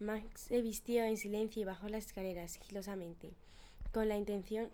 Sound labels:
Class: speech